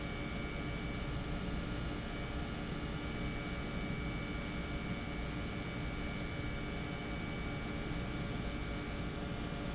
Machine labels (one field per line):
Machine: pump